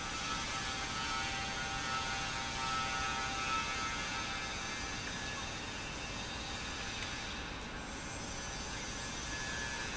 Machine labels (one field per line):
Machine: pump